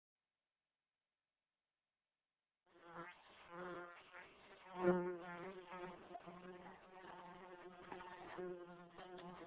A flying insect is buzzing